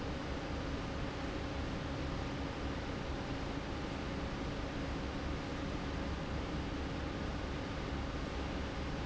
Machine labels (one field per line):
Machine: fan